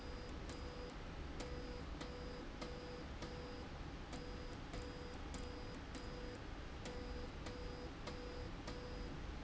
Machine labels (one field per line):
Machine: slide rail